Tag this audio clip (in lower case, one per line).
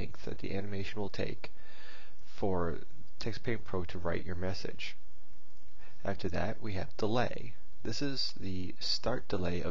speech